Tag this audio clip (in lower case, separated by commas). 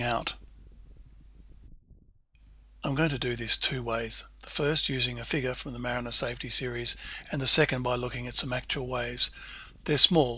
speech